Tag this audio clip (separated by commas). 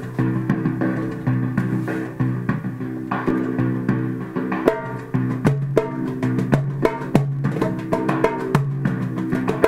Music, Percussion